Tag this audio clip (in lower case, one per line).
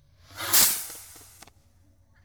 fireworks
explosion